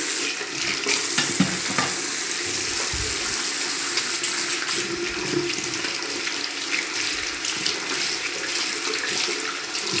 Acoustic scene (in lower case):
restroom